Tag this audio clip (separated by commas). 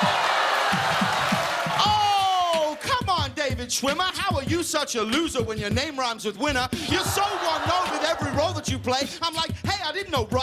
rapping